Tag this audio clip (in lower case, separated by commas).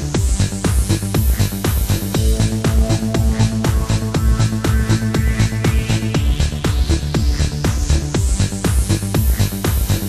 music